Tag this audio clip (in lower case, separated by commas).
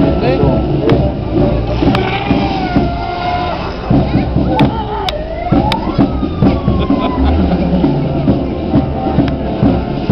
music, speech